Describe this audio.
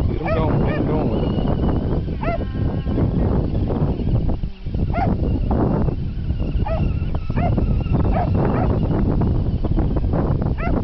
Male voice with wind and dogs barking in background